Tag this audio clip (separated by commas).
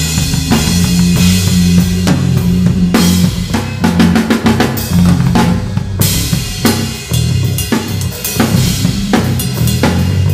Drum, Percussion, Snare drum, Drum roll, Rimshot, Bass drum, Drum kit